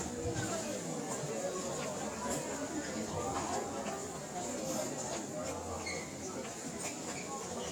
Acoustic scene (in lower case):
crowded indoor space